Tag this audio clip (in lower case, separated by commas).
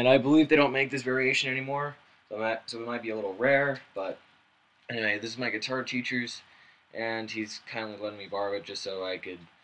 speech